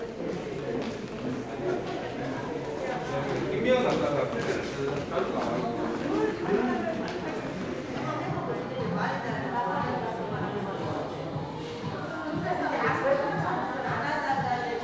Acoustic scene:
crowded indoor space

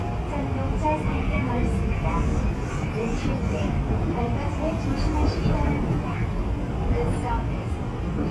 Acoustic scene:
subway train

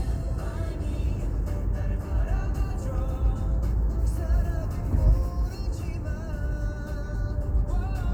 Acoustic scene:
car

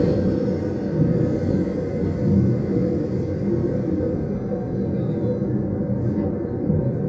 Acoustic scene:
subway train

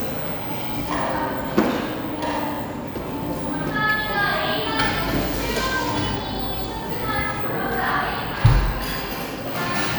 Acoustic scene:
cafe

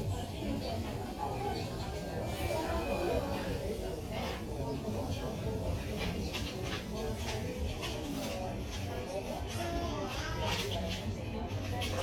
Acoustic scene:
crowded indoor space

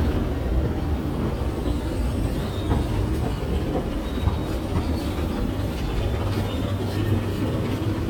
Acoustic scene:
subway station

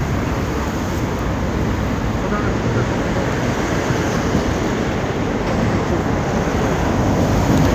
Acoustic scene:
street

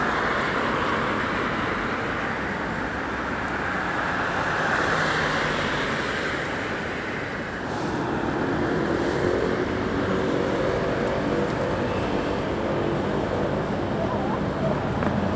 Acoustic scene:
street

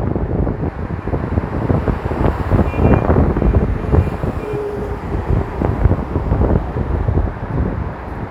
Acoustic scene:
street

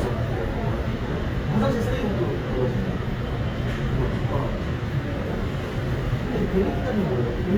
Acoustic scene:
subway station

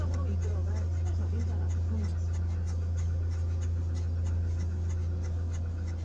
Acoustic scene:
car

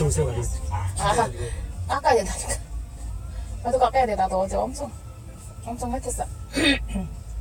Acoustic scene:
car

